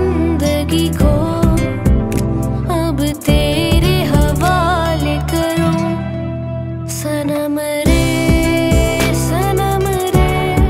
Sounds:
child singing

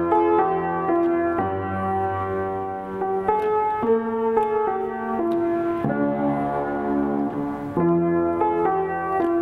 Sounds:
Music

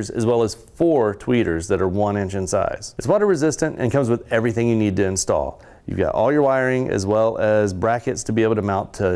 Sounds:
Speech

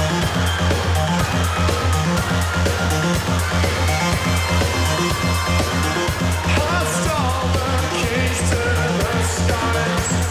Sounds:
Music

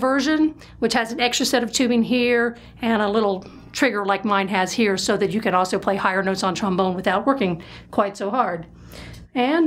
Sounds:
Speech

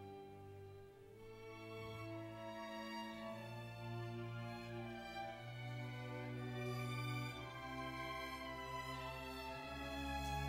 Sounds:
Musical instrument, fiddle, Music, Orchestra

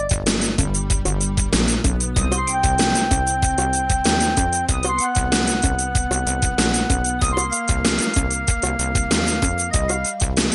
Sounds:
Music, Soundtrack music

